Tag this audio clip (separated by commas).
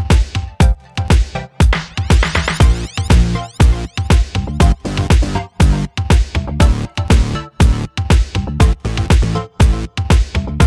Music